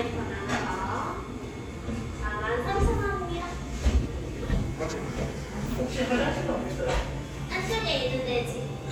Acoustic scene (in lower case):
cafe